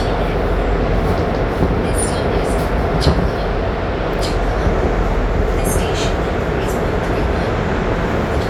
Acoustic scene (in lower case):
subway train